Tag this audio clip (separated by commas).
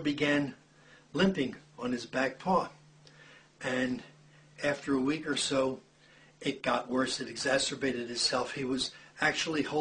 Speech